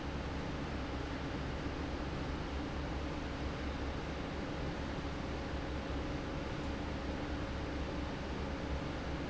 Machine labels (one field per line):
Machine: fan